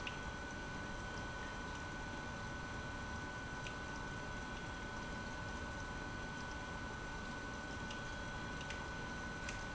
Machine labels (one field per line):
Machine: pump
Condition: abnormal